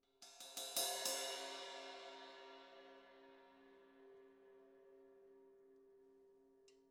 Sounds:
music
crash cymbal
musical instrument
percussion
cymbal

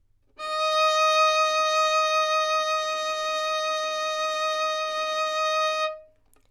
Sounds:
musical instrument
bowed string instrument
music

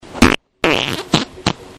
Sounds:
fart

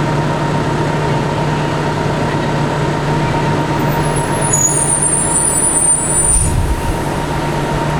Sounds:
engine
motor vehicle (road)
vehicle
screech
bus
idling

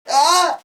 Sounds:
screaming
human voice

